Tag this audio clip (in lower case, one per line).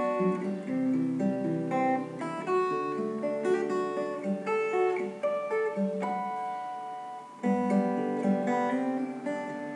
musical instrument
plucked string instrument
guitar
music
acoustic guitar